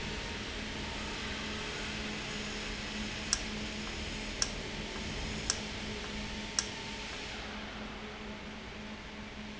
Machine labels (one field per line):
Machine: valve